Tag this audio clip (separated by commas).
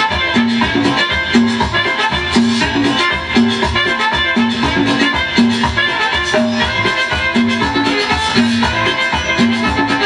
Music